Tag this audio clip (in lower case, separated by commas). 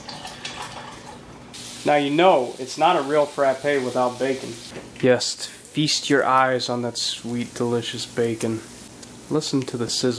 inside a small room, speech